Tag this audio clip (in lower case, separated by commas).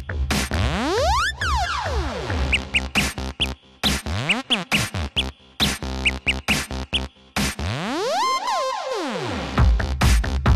music